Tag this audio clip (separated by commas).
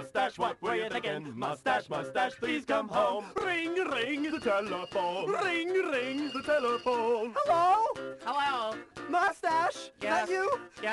Music, Ringtone